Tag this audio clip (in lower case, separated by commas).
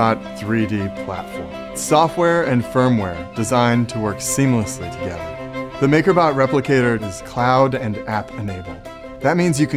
music, speech